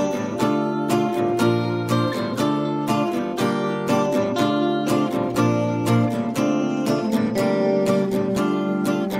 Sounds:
Music

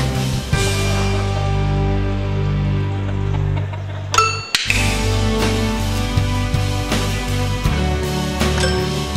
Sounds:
Cluck, Fowl, rooster

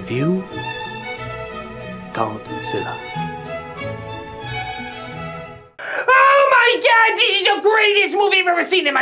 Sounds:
Speech, Music, inside a small room

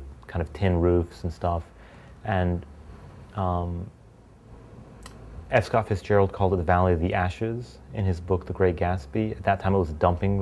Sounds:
Speech

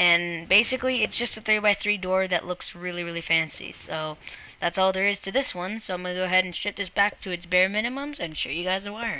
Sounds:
Speech

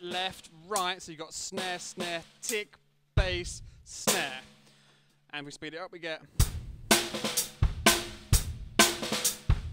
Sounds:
Rimshot, Drum kit, Percussion, Snare drum, Bass drum, Drum

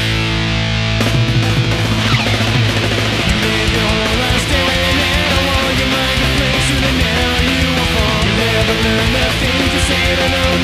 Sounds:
Strum, Musical instrument, Guitar, Music, Plucked string instrument

